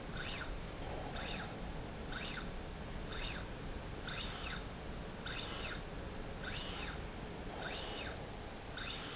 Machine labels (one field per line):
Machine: slide rail